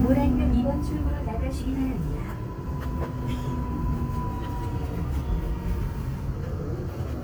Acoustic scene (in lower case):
subway train